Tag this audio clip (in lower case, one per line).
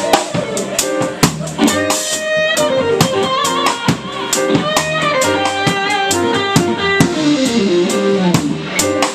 electric guitar
musical instrument
music
bass guitar
guitar